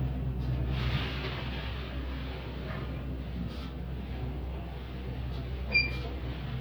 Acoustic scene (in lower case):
elevator